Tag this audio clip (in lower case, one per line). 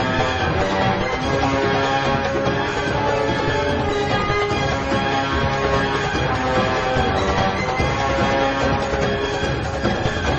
music
background music